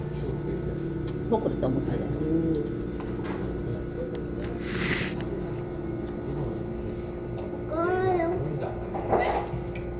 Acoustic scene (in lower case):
crowded indoor space